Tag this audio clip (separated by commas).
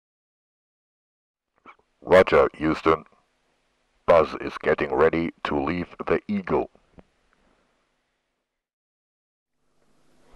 Speech